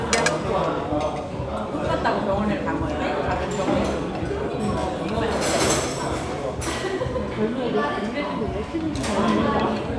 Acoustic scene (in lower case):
restaurant